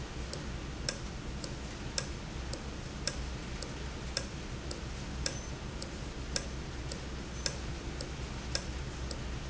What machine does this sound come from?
valve